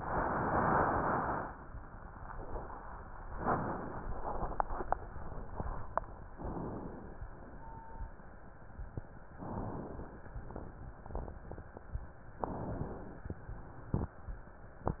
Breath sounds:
Inhalation: 6.35-7.25 s, 9.40-10.30 s, 12.44-13.33 s

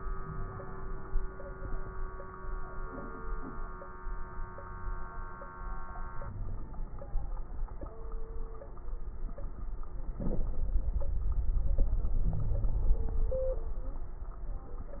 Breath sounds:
Wheeze: 6.19-6.60 s, 12.24-12.91 s

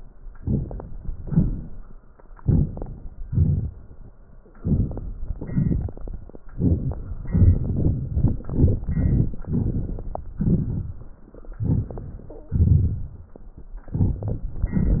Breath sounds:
Inhalation: 0.38-0.85 s, 2.38-2.88 s, 4.57-5.04 s
Exhalation: 1.19-1.69 s, 3.27-3.77 s

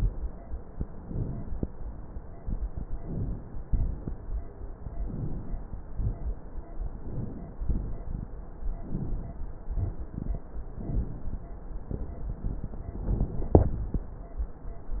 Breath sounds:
Inhalation: 0.87-1.52 s, 2.96-3.61 s, 5.03-5.68 s, 6.92-7.64 s, 8.66-9.38 s, 10.79-11.51 s
Exhalation: 3.61-4.25 s, 7.66-8.38 s, 9.75-10.47 s
Crackles: 0.87-1.50 s

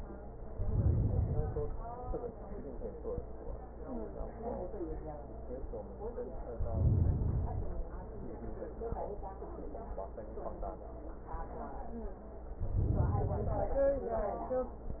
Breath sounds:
Inhalation: 0.42-1.92 s, 6.49-7.88 s, 12.49-13.88 s

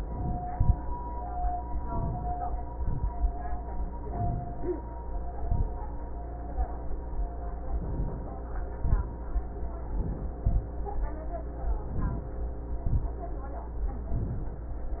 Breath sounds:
Inhalation: 1.67-2.41 s, 4.06-4.84 s, 7.68-8.37 s, 9.92-10.42 s, 11.88-12.41 s, 14.08-14.74 s
Exhalation: 0.51-0.80 s, 2.71-3.09 s, 5.29-5.77 s, 8.78-9.22 s, 10.44-10.74 s, 12.81-13.21 s

